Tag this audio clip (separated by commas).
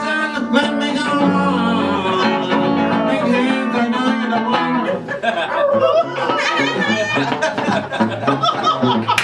Male singing, Music